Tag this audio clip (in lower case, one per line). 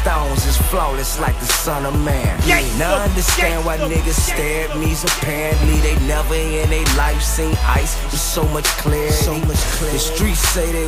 music